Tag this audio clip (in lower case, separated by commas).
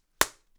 hands, clapping